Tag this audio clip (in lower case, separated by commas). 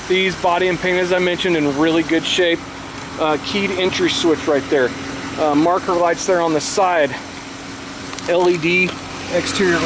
speech, bus, outside, urban or man-made, vehicle